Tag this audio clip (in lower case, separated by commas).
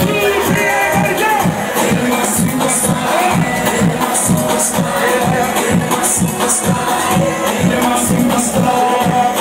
speech, music